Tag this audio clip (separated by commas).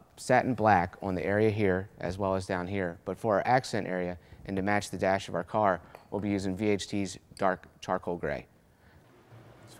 Speech